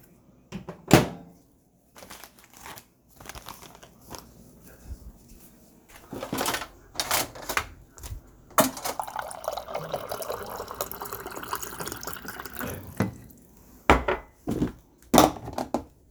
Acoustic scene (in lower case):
kitchen